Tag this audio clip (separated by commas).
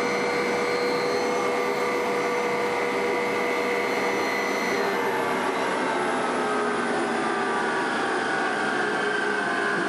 Vehicle, Aircraft